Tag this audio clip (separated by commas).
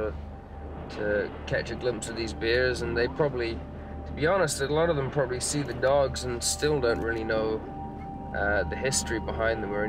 Music, Speech